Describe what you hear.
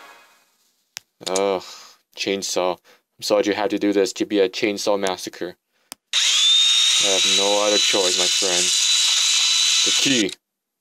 Male speaking while using a chainsaw